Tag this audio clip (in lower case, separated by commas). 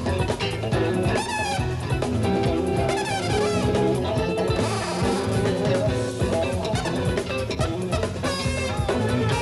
music, jazz